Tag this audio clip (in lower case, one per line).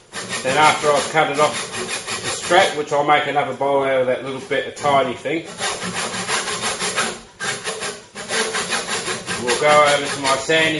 speech
tools